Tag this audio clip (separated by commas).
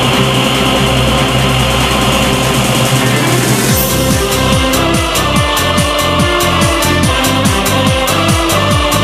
Music, Classical music